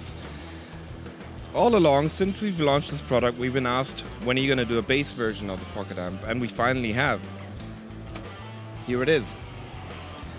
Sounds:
Music, Speech

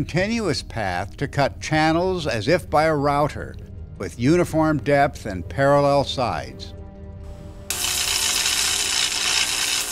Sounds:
Speech

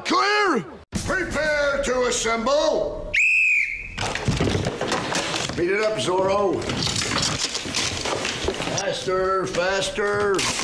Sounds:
Speech

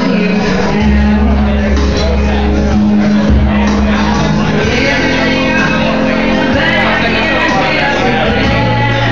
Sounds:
Female singing, Music, Speech

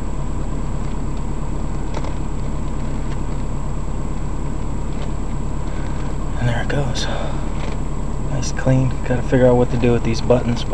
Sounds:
Vehicle, Speech

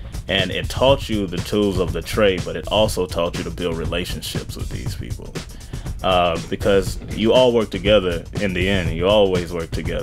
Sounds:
Music, Speech

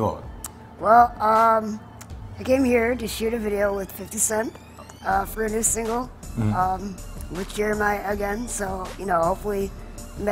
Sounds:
Speech, Music

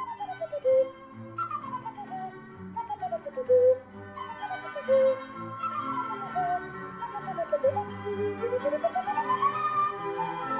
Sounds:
Music

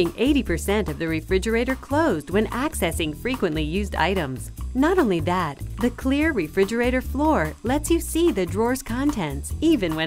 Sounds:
Music, Speech

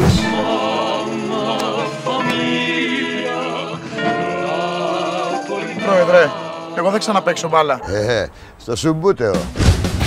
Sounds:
Speech, Music

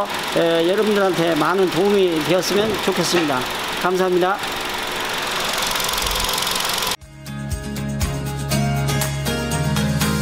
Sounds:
car engine idling

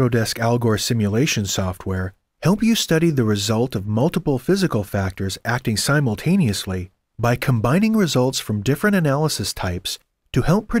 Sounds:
Speech

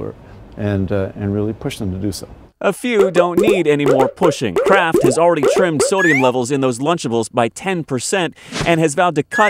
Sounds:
Speech

